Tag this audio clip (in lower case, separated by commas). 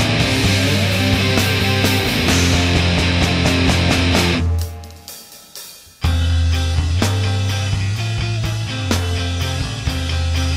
grunge, music